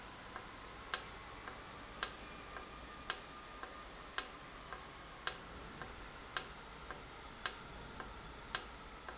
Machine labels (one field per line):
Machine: valve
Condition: normal